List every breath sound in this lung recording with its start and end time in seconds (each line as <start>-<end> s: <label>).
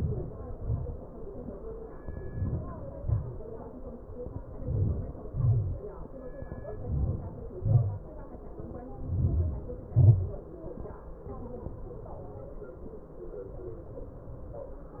0.00-0.55 s: inhalation
0.57-1.04 s: exhalation
2.01-2.73 s: inhalation
2.71-3.25 s: exhalation
4.36-5.14 s: inhalation
5.16-5.84 s: exhalation
6.56-7.44 s: inhalation
7.44-8.08 s: exhalation
8.75-9.93 s: inhalation
10.00-10.59 s: exhalation